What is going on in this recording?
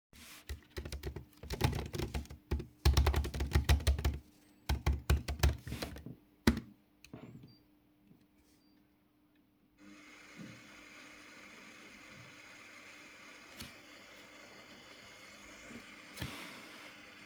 I am working at my laptop in the office which is located next to the kitchen. As I am typing on the keyboard, the coffee machine in the next room begins its brewing coffee.